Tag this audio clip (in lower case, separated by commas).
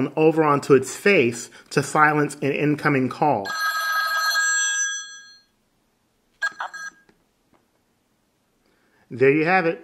speech, telephone bell ringing